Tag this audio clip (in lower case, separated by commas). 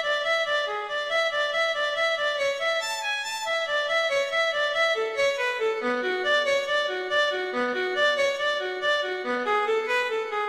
fiddle, music, musical instrument